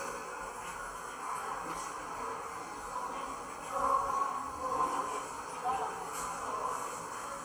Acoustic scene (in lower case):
subway station